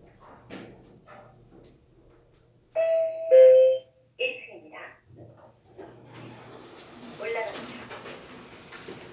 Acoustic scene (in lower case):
elevator